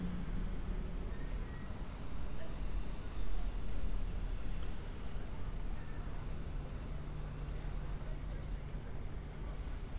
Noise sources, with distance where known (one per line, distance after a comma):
unidentified human voice, far